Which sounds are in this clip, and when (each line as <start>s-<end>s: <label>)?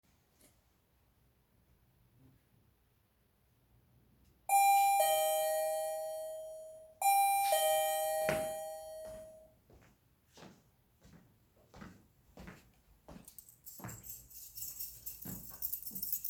4.4s-9.1s: bell ringing
10.2s-14.1s: footsteps
13.5s-16.3s: keys